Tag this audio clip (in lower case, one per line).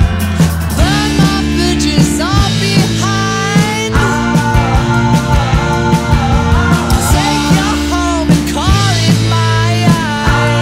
music